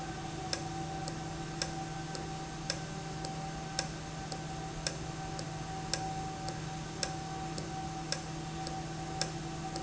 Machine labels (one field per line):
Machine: valve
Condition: normal